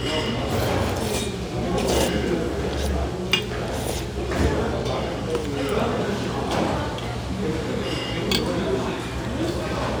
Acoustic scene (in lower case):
restaurant